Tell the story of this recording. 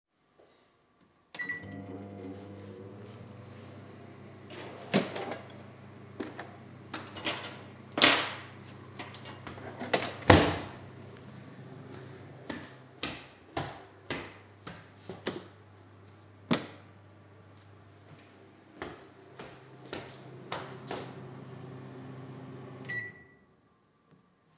I started the microwave, opened the drawer, searched for the cutlery and put it on the table, adjusted the light, returned and changed the microwave settings.